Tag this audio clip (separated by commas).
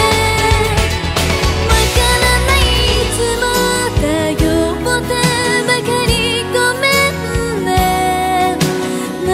Music